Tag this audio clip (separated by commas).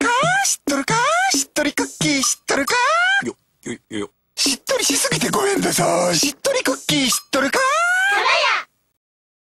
Music